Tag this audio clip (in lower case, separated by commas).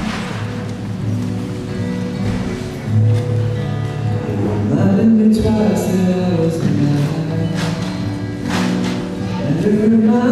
music, speech